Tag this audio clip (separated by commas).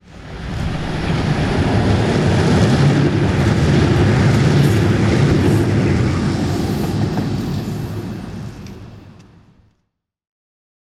Vehicle